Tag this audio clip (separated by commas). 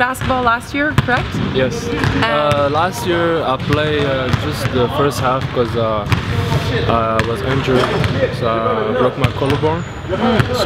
Speech